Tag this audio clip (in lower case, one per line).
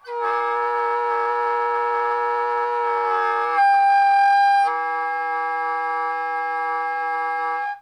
music
woodwind instrument
musical instrument